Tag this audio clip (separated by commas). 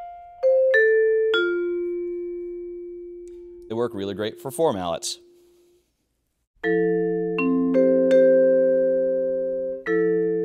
playing vibraphone, Speech, Percussion, Music, Vibraphone, Musical instrument